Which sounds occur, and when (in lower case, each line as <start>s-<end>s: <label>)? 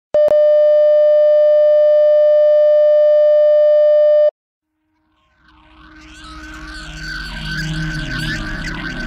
0.1s-4.3s: busy signal
4.9s-9.0s: sound effect